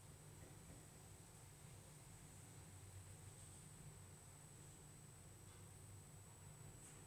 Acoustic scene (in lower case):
elevator